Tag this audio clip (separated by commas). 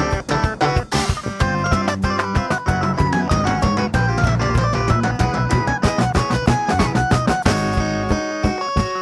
Music